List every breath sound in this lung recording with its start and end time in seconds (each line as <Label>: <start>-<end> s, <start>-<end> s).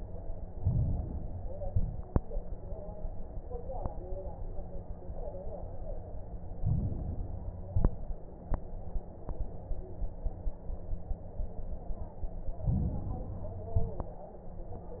Inhalation: 0.43-1.54 s, 6.55-7.66 s, 12.58-13.68 s
Exhalation: 1.61-2.24 s, 7.66-8.28 s, 13.68-14.31 s
Crackles: 0.43-1.54 s, 1.61-2.24 s, 6.55-7.66 s, 7.67-8.30 s, 12.58-13.68 s